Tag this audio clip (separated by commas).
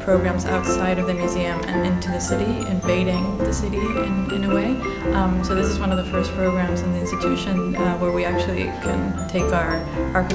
Speech, Music